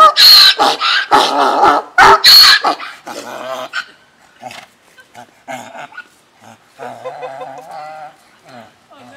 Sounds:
donkey

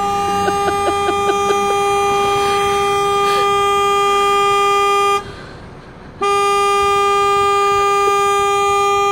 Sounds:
vehicle horn

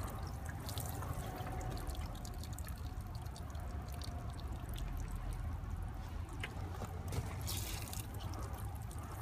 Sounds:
Trickle

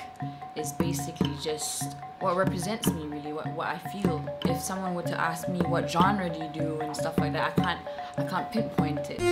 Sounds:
Music, Speech

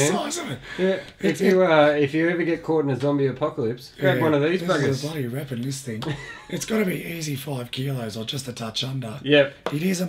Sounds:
Speech

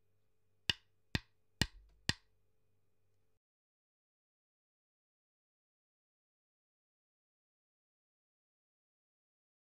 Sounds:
Sound effect

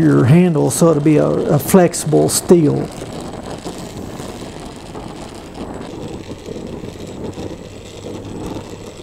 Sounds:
Tools

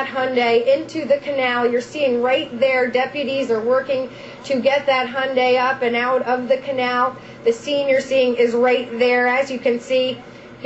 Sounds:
Speech

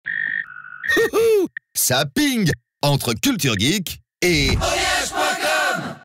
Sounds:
Speech, Music

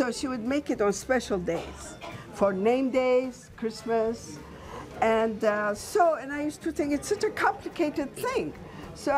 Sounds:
Speech, Music

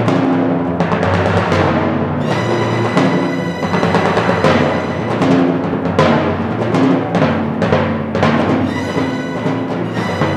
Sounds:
playing timpani

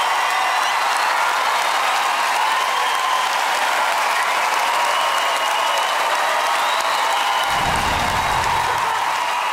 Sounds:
singing choir

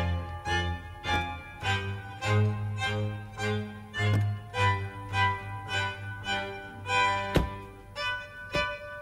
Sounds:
Music, Door

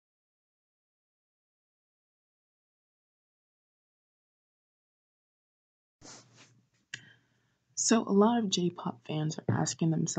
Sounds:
Speech

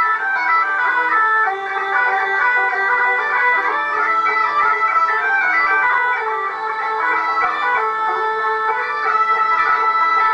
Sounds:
Music, Musical instrument, Violin

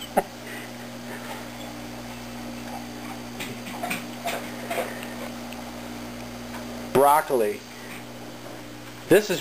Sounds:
Speech

